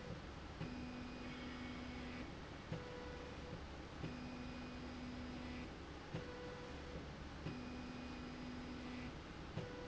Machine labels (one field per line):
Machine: slide rail